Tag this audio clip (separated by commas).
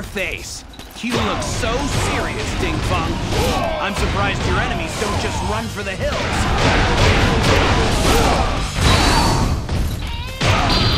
Speech